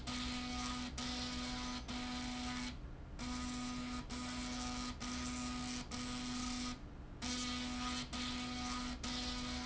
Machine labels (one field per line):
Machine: slide rail